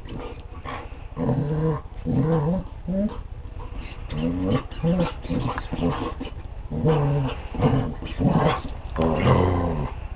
A large dog whimpers